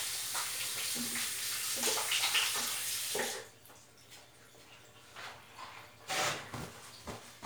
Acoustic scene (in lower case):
restroom